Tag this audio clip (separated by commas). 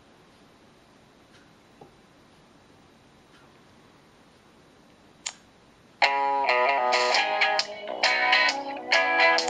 Music